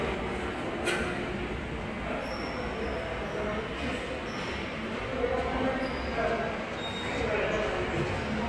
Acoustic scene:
subway station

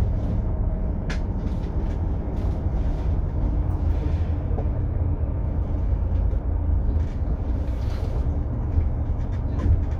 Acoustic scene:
bus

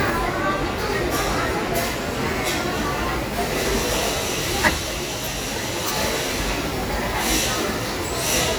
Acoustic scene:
restaurant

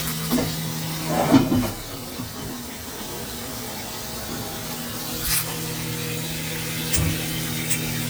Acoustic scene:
kitchen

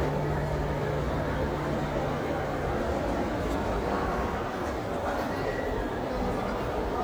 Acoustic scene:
crowded indoor space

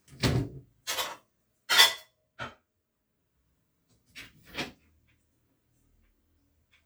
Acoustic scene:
kitchen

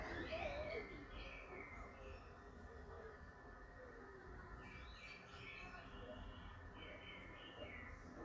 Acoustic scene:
park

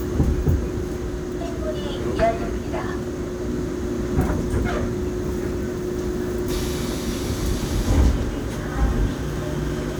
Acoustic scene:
subway train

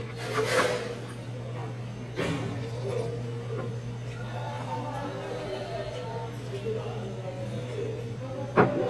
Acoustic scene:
restaurant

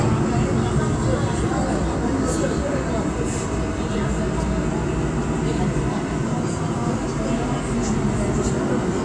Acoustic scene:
subway train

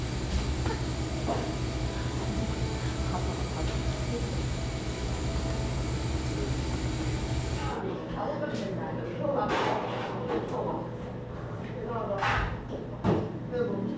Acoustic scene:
cafe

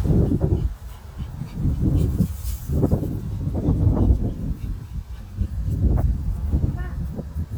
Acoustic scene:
residential area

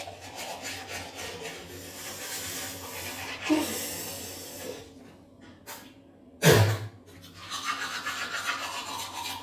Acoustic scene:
restroom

